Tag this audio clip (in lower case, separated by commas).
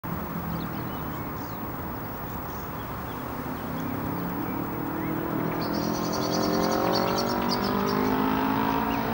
auto racing